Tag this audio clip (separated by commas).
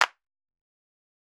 Clapping, Hands